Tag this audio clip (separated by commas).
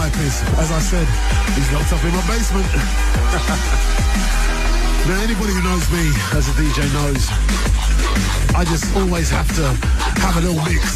Music, Electronic music, Drum and bass